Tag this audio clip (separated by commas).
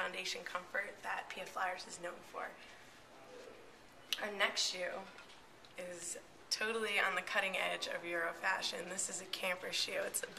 Speech